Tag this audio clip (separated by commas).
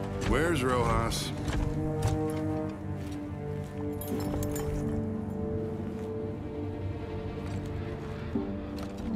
Speech, Music